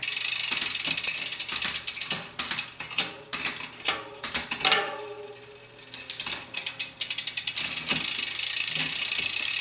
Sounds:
Vehicle, Bicycle

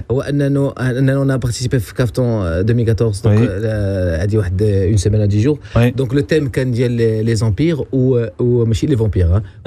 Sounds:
Speech

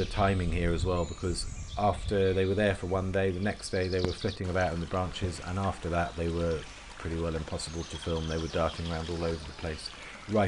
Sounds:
Speech, Bird

